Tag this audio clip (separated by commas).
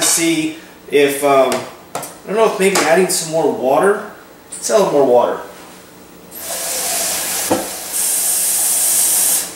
Speech